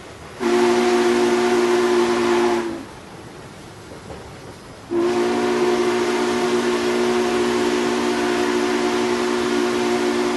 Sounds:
train whistling

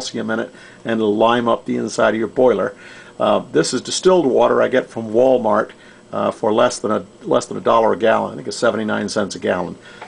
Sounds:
Speech

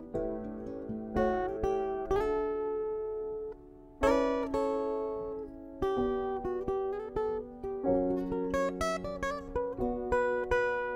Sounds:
Music, Musical instrument, Guitar

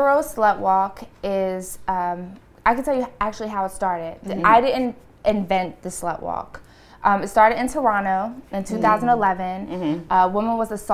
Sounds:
Speech

